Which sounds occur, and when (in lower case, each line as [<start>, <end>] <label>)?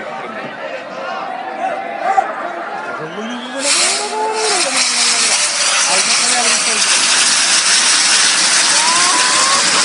[0.00, 9.84] speech noise
[0.01, 1.29] male speech
[2.00, 2.49] male speech
[3.01, 9.84] firecracker
[3.05, 4.89] male speech
[5.97, 7.07] male speech
[8.66, 9.61] male speech
[9.23, 9.84] laughter